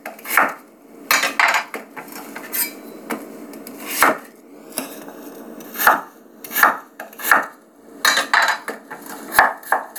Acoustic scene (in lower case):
kitchen